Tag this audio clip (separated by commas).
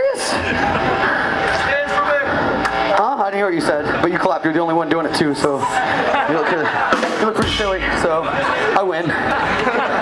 Music, Speech